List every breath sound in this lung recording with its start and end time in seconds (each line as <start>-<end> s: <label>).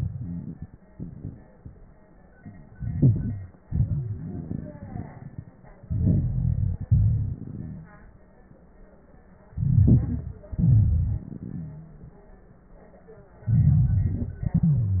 2.70-3.61 s: inhalation
2.70-3.61 s: crackles
3.63-4.32 s: wheeze
3.63-5.78 s: exhalation
4.56-5.25 s: wheeze
5.82-6.85 s: inhalation
6.88-8.21 s: exhalation
7.59-8.13 s: wheeze
9.52-10.51 s: inhalation
9.52-10.51 s: crackles
10.52-12.09 s: exhalation
11.55-12.09 s: wheeze
13.44-14.44 s: inhalation
13.44-14.44 s: crackles
14.43-15.00 s: exhalation
14.43-15.00 s: wheeze